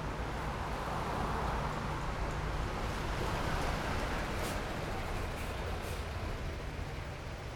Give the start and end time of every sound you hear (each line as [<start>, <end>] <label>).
[0.00, 6.42] car wheels rolling
[0.00, 7.55] car
[0.00, 7.55] car engine idling
[3.23, 6.08] bus wheels rolling
[3.23, 7.55] bus
[4.18, 4.68] bus compressor
[5.05, 5.50] bus compressor
[5.70, 6.05] bus compressor